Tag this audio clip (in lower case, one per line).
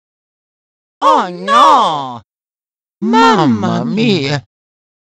speech